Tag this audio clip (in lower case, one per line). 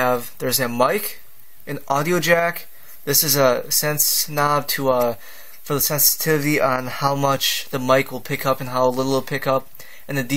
speech